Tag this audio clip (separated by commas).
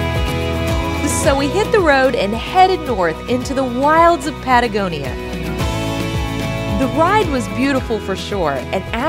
Music, Speech